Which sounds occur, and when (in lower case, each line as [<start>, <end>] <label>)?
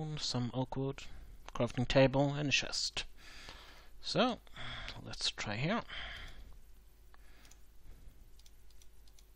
[0.00, 1.00] male speech
[0.00, 9.35] background noise
[0.00, 9.35] video game sound
[1.40, 1.50] generic impact sounds
[1.53, 3.04] male speech
[3.14, 3.90] breathing
[3.97, 4.35] male speech
[4.38, 4.49] generic impact sounds
[4.46, 4.94] breathing
[4.81, 4.94] generic impact sounds
[5.12, 5.85] male speech
[5.81, 6.43] breathing
[6.08, 6.54] generic impact sounds
[7.06, 7.56] breathing
[7.07, 7.17] generic impact sounds
[7.38, 7.53] clicking
[7.84, 8.31] breathing
[8.34, 8.52] clicking
[8.64, 8.87] clicking
[9.04, 9.23] clicking